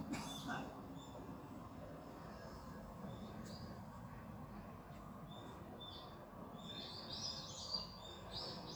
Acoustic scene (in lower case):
park